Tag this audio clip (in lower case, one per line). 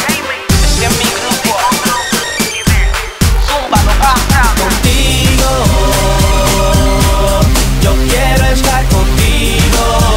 music